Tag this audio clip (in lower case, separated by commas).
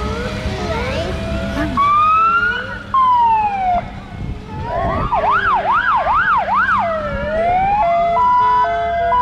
motor vehicle (road), truck, emergency vehicle, vehicle, fire truck (siren), speech